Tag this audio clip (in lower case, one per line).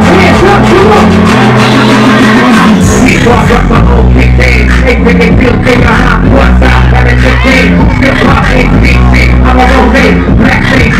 music